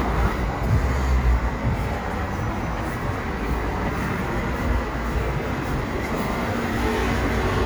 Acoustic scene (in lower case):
street